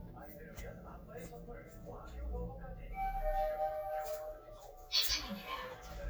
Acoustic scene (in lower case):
elevator